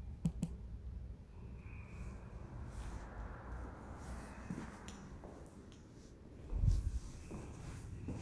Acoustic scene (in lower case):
elevator